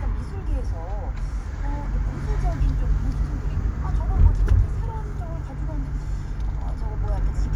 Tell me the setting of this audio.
car